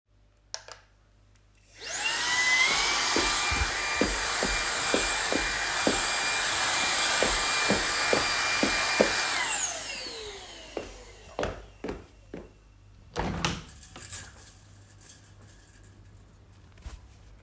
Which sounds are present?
vacuum cleaner, footsteps, window